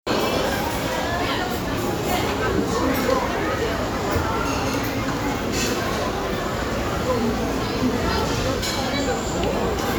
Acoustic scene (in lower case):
restaurant